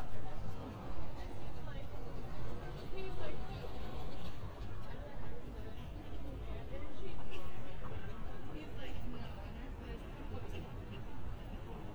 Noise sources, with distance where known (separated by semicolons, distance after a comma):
person or small group talking